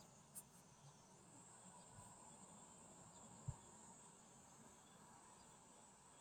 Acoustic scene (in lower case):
park